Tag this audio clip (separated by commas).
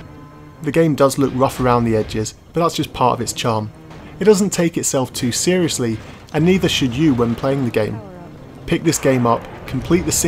Speech